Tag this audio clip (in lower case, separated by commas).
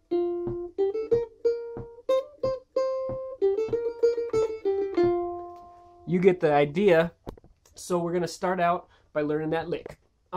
playing mandolin